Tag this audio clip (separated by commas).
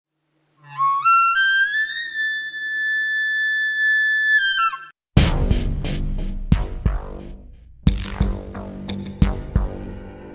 Shofar, woodwind instrument